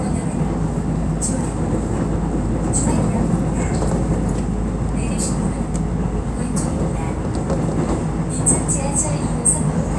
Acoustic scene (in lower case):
subway train